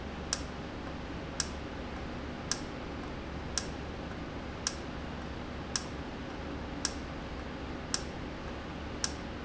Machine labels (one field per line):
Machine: valve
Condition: normal